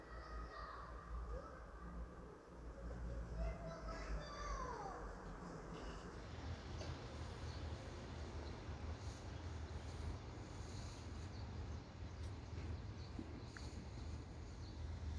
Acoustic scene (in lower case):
residential area